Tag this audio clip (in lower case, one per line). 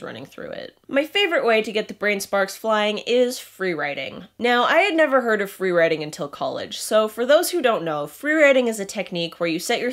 speech